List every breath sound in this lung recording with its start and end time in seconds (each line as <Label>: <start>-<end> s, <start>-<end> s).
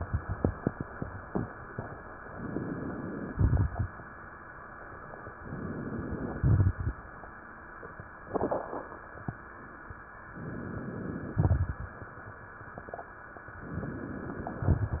Inhalation: 2.28-3.27 s, 5.39-6.38 s, 10.27-11.39 s, 13.57-14.59 s
Exhalation: 3.27-3.93 s, 6.38-7.04 s, 11.39-12.01 s, 14.59-15.00 s
Crackles: 3.27-3.93 s, 6.38-7.04 s, 11.39-12.01 s, 14.59-15.00 s